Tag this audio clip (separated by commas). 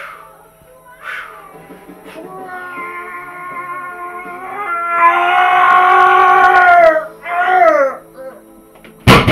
inside a small room